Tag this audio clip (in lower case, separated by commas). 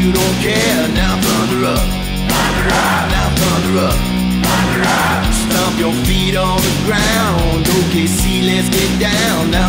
music, dance music